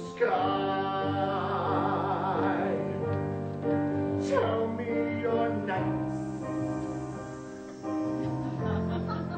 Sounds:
musical instrument, music, guitar

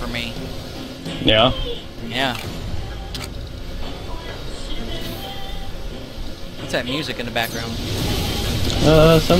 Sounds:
music, speech

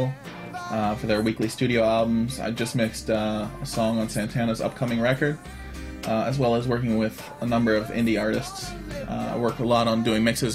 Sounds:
speech, music

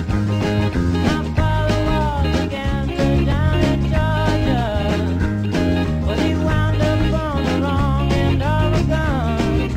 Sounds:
music, guitar, musical instrument

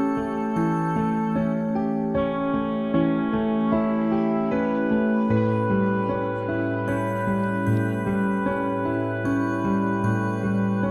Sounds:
music

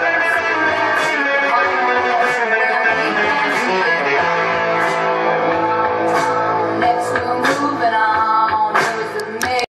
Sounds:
plucked string instrument, musical instrument, music, guitar, electric guitar

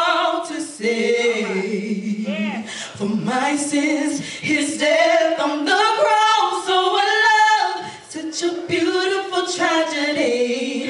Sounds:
speech, female singing

